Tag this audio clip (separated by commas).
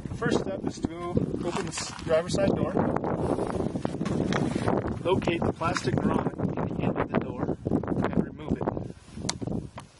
Speech